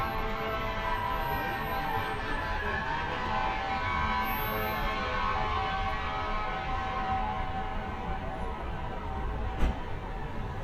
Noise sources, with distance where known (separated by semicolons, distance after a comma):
siren, near